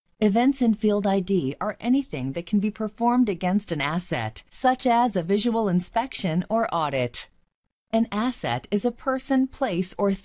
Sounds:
speech

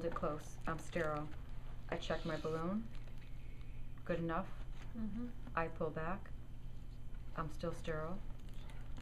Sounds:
speech
inside a small room

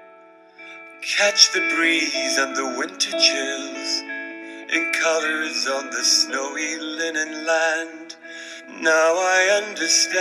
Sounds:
male singing
music

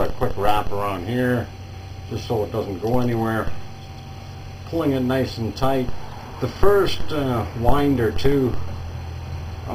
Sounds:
speech

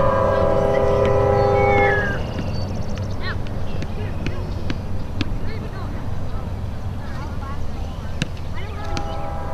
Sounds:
speech

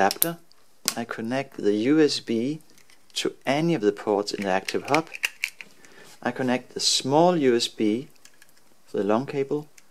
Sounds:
speech

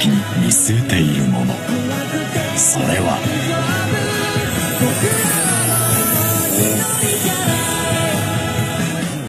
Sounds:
music
speech

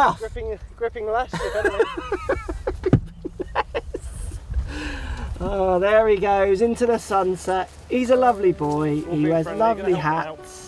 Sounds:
outside, rural or natural
music
speech

